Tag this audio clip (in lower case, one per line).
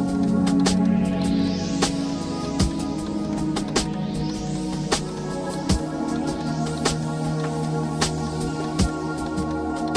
music